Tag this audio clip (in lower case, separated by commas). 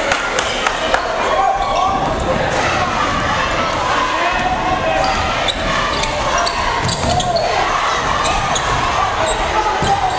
basketball bounce, speech